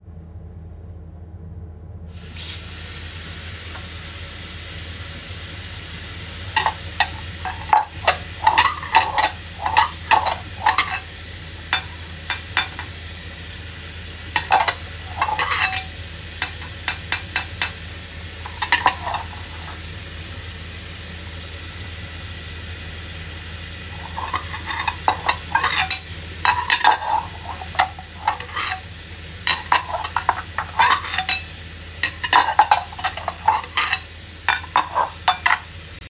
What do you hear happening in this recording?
I turned on the water tap and started washing a dishes. The two of this sounds was polyphony.